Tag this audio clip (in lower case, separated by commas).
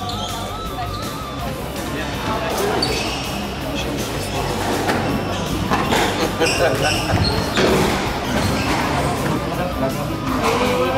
playing squash